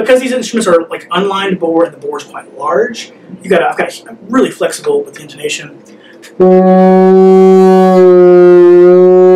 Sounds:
music
speech
inside a small room
wind instrument
musical instrument

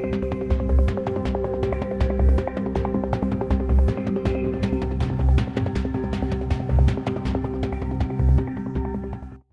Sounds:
music

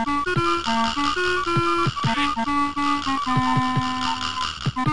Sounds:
music

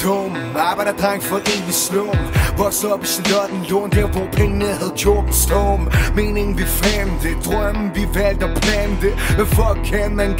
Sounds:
jazz
music
rhythm and blues

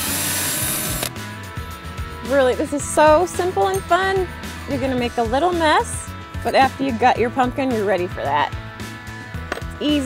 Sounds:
speech
music

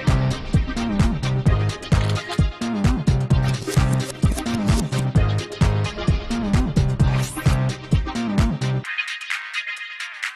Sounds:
music
soundtrack music

